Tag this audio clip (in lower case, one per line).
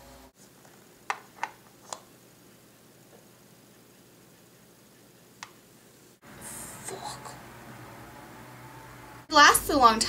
speech
inside a small room